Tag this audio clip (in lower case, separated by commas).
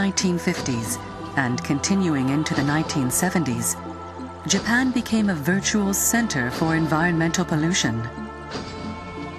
music, speech